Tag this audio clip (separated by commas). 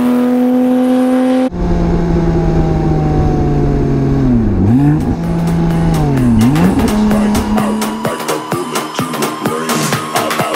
Music